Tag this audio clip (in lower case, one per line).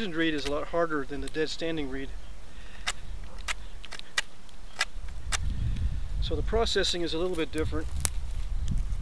speech